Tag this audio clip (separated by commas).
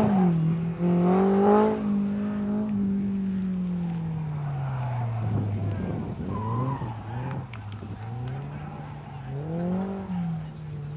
Heavy engine (low frequency), Speech